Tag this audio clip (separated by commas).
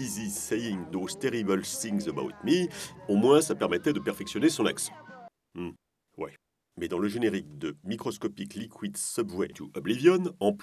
Speech